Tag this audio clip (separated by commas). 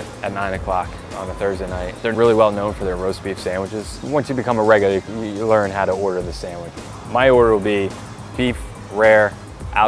Music, Speech